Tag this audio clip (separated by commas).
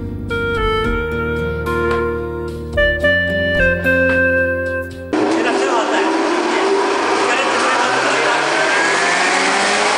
Speech, Music